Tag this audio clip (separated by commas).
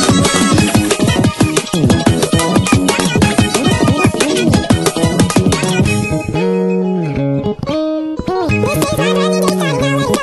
Music, Bass guitar